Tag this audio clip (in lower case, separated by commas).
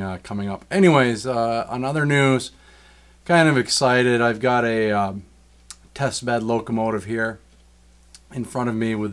speech